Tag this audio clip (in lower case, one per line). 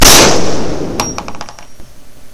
gunshot
explosion